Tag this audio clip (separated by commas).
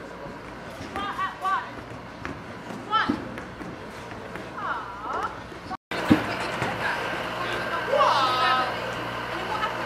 Speech